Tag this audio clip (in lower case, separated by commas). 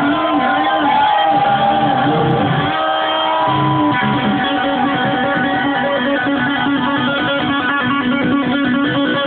plucked string instrument, strum, electric guitar, music, musical instrument, guitar